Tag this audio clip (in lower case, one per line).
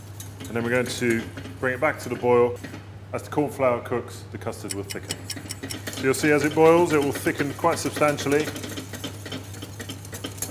inside a small room
speech